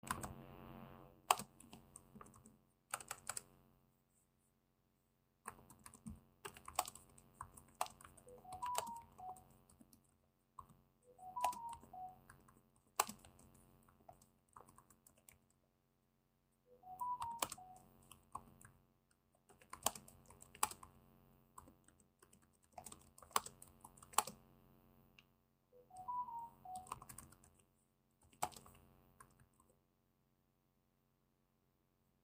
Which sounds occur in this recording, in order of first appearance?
keyboard typing, phone ringing